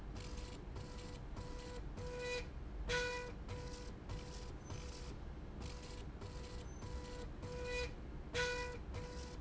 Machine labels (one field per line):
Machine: slide rail